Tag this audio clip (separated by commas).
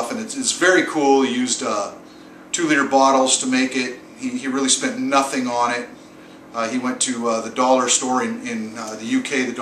Speech